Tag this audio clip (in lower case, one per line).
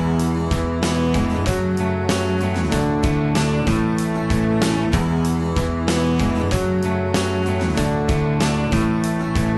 music